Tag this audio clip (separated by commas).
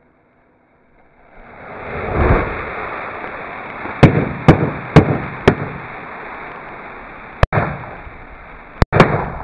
lighting firecrackers